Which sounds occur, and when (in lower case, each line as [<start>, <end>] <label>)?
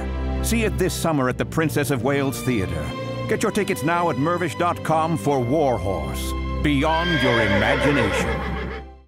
[0.00, 9.05] music
[0.41, 2.89] man speaking
[3.25, 6.33] man speaking
[6.62, 8.35] man speaking
[6.85, 8.72] whinny